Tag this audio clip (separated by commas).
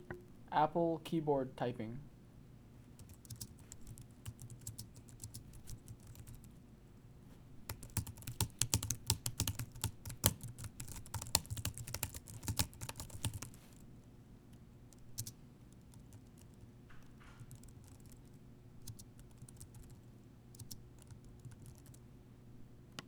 Typing, Domestic sounds